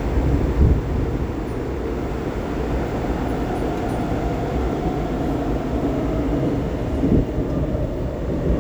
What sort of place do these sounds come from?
subway train